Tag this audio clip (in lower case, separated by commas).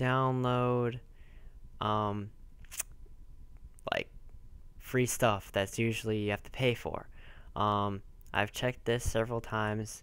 speech